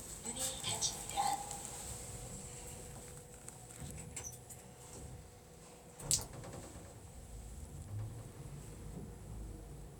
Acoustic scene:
elevator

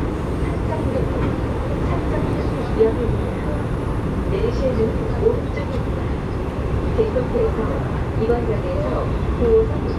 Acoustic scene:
subway train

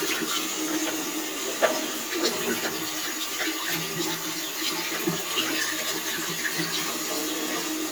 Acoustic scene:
restroom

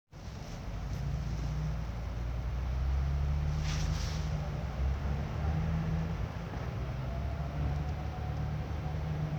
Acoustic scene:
residential area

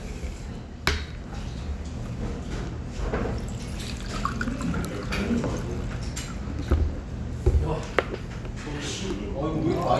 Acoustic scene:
restaurant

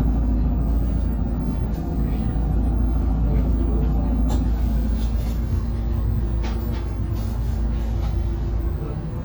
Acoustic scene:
bus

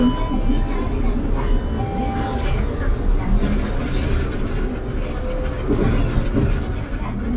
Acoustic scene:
bus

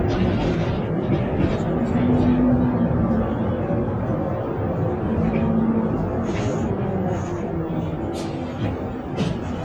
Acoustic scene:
bus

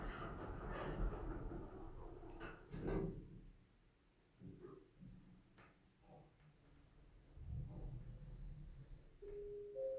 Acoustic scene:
elevator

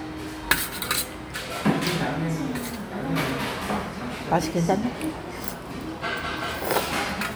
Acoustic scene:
crowded indoor space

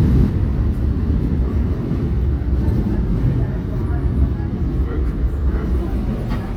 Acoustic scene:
subway train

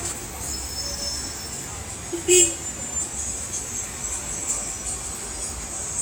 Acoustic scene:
street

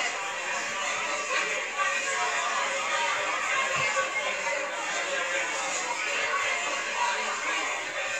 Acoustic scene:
crowded indoor space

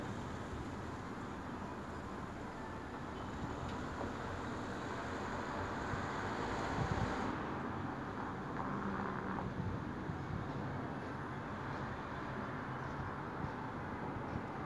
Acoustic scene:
street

